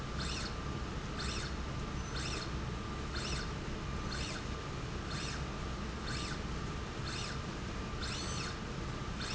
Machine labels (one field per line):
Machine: slide rail